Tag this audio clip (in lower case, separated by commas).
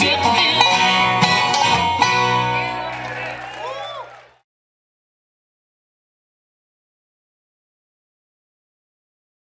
musical instrument, plucked string instrument, speech, music, guitar